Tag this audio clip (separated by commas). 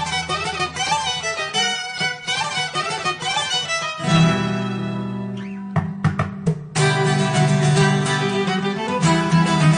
Music